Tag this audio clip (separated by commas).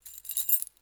home sounds, Keys jangling, Rattle